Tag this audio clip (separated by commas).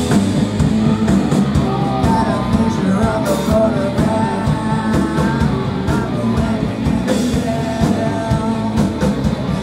Music